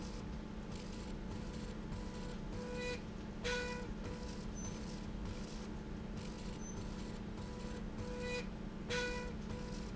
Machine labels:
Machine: slide rail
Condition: normal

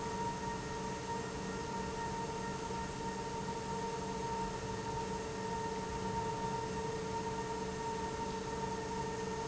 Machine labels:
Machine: pump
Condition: normal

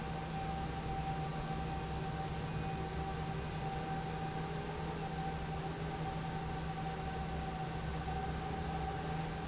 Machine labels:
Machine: fan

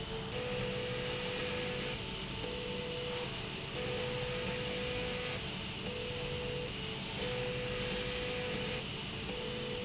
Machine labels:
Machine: slide rail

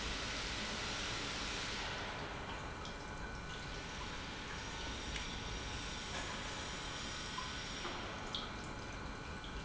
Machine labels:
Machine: pump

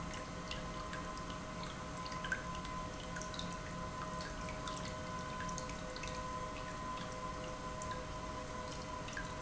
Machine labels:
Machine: pump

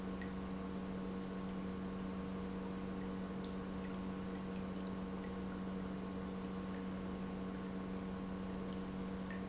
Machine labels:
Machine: pump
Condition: normal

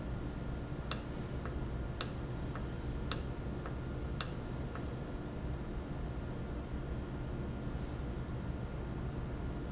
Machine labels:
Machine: valve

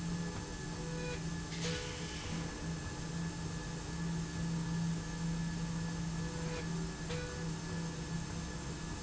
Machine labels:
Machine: slide rail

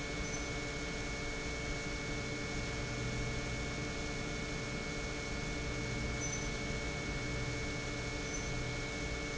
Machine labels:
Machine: pump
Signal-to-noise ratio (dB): -6 dB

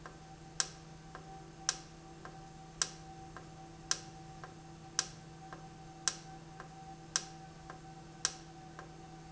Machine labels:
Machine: valve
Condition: normal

